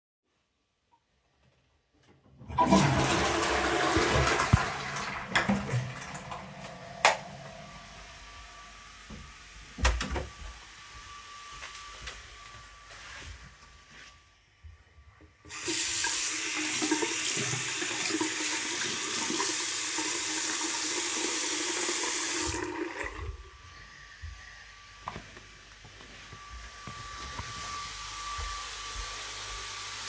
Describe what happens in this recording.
I flushed the toilet, opened the toilet door, steped outside, closed the toilet door, went into the bathroom and washed my hands in the sink. For the whole recording someone vaacumed in the living room.